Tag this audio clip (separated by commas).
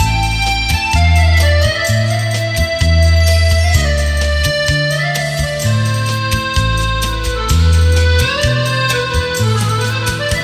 Music